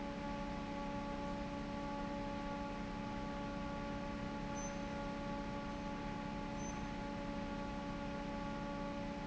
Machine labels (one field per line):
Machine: fan